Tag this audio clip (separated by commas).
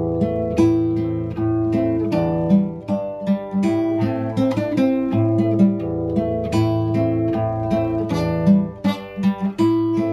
Plucked string instrument, Musical instrument, Flamenco, Guitar